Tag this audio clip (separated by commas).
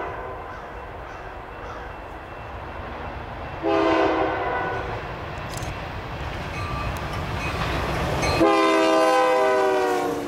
Train horn, Rail transport, Train, Railroad car